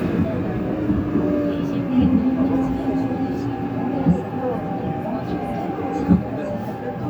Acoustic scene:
subway train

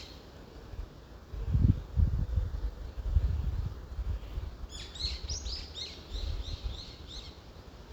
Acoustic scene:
park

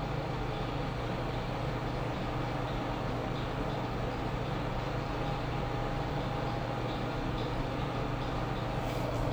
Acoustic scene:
elevator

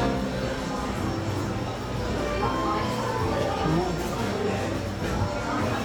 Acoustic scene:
cafe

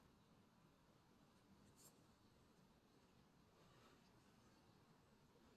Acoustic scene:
park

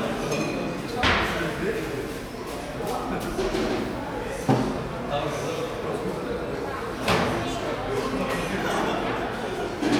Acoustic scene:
cafe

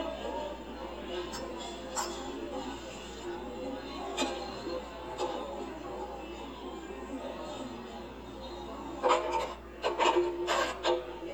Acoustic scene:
cafe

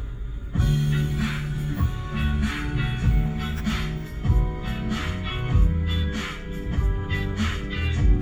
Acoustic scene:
car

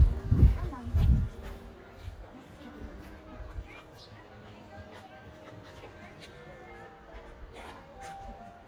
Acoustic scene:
park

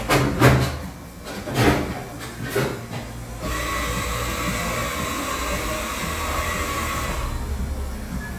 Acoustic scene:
cafe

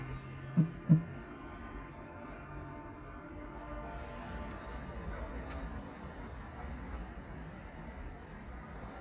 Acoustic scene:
residential area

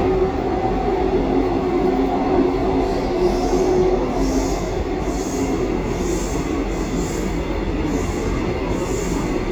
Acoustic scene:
subway train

